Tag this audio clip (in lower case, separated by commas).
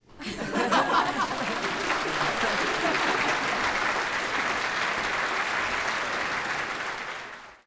crowd, human group actions, applause